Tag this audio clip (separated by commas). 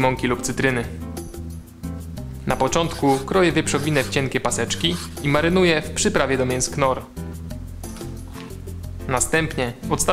Speech, Music